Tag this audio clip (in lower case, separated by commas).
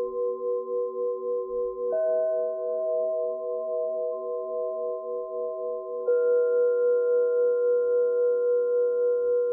singing bowl